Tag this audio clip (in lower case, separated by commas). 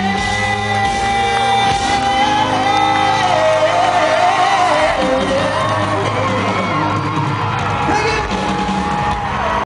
music, plucked string instrument, musical instrument, guitar